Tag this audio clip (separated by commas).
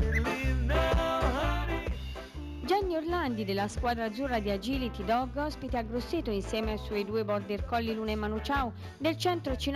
Animal, Music, Speech